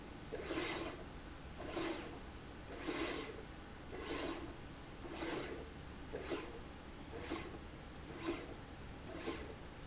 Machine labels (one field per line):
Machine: slide rail